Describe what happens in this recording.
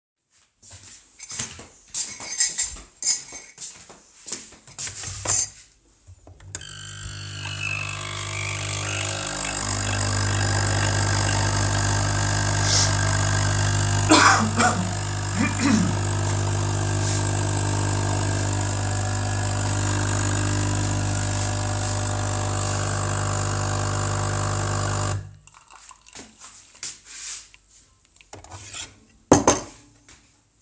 As they shuffle along, the spoon rattles in the coffee cup. They place it under the coffee machine and switch it on. They sniffle, cough, and clear their throat. AS the coffemashine stops, some dripping is heard. Then they take the cup and set it down on the table.